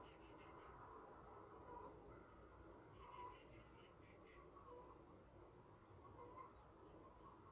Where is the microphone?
in a park